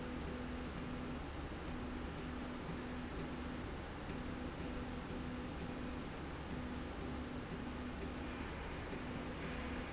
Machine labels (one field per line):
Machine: slide rail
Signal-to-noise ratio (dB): 0 dB